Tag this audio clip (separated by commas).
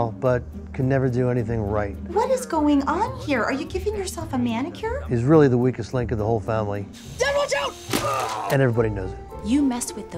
Music, Speech